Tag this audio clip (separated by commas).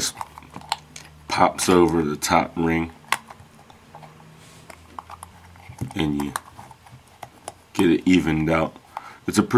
Speech